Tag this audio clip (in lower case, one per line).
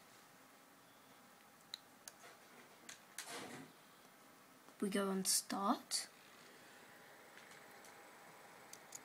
speech
typing